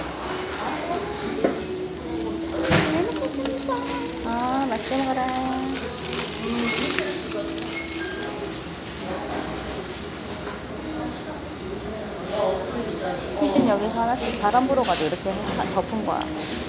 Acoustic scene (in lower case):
restaurant